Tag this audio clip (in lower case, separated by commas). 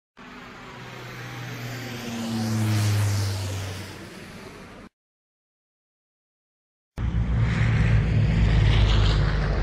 vehicle, aircraft